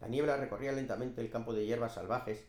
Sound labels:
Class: speech